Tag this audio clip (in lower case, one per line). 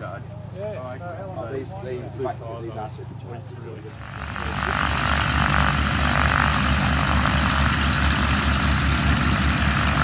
speech